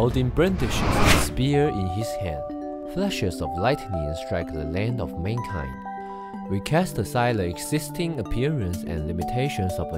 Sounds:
speech, music

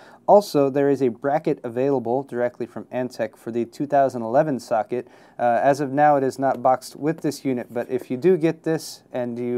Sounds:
speech

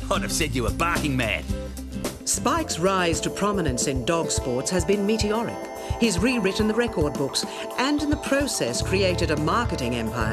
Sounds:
music, speech

